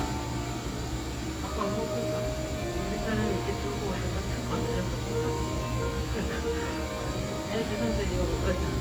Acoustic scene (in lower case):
cafe